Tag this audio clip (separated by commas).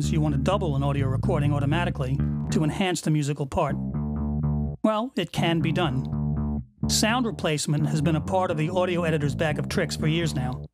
Speech, Music